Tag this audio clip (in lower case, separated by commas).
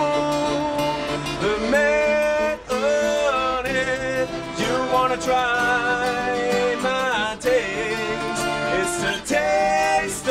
music